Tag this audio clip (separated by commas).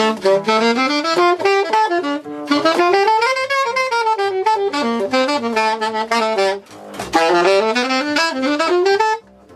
Brass instrument, Saxophone